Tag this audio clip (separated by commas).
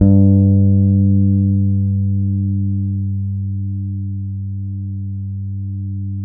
Musical instrument, Plucked string instrument, Bass guitar, Guitar, Music